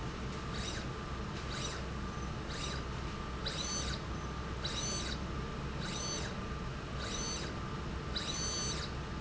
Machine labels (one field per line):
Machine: slide rail